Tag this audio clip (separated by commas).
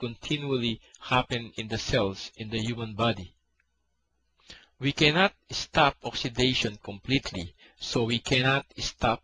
Speech